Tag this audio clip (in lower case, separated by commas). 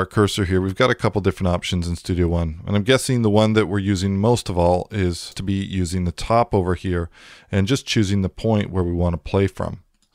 speech